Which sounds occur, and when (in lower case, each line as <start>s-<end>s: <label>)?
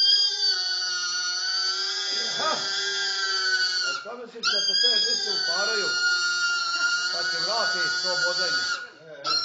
0.0s-4.0s: pig
0.0s-9.4s: background noise
2.3s-2.6s: man speaking
3.8s-9.3s: conversation
3.8s-5.9s: man speaking
4.2s-4.4s: generic impact sounds
4.4s-8.8s: pig
6.7s-6.9s: human voice
7.1s-8.5s: man speaking
8.8s-9.1s: surface contact
8.9s-9.3s: man speaking